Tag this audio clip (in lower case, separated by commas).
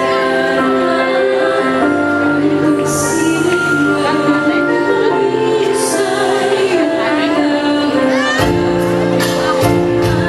female singing, synthetic singing, music